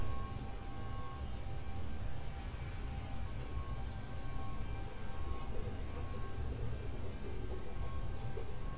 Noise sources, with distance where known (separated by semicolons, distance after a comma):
background noise